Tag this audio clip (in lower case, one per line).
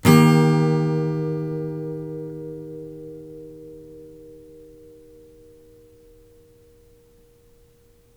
plucked string instrument
music
acoustic guitar
guitar
musical instrument
strum